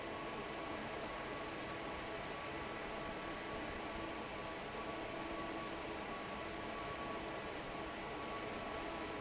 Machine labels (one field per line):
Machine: fan